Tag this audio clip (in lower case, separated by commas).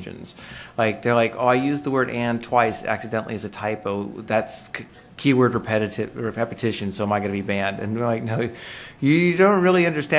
speech